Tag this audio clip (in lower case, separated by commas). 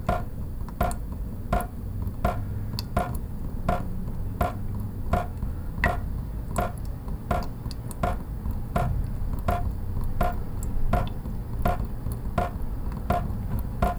traffic noise, dribble, vehicle, drip, liquid, motor vehicle (road), pour